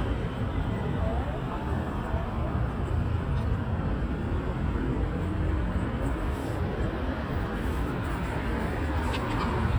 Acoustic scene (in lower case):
residential area